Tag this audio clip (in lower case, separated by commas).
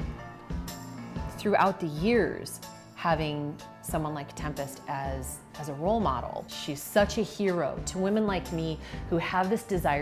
music